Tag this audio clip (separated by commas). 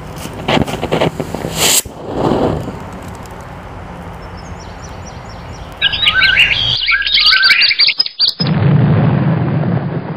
tweet, Bird vocalization, Bird